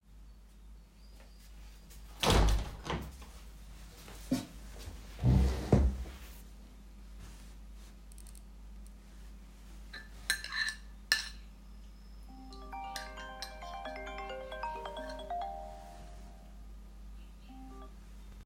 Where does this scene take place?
living room